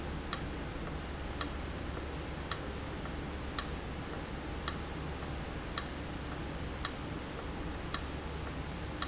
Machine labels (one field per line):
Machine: valve